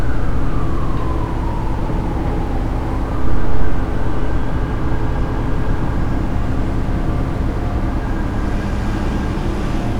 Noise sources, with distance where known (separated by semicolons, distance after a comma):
siren, far